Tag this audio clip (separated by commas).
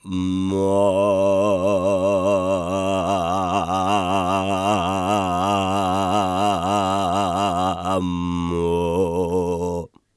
Human voice, Male singing, Singing